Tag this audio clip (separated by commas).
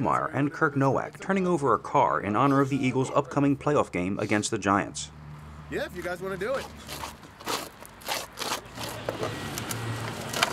Vehicle, Speech